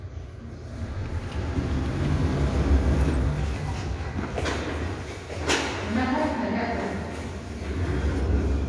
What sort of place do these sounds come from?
elevator